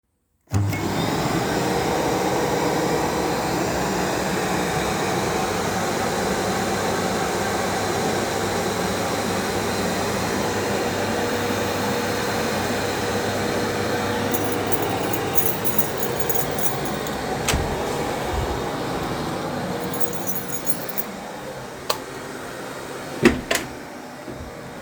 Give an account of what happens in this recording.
The vacuum cleaner turned on and while it was running the doorbell rang. I took my keychain and walked to the door. I opened the living room door and continued walking to open the apartment door. As I was walking the keychain made noise and I turned on the light switch before opening the door.